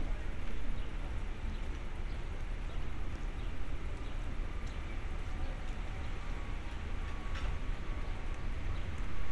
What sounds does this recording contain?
non-machinery impact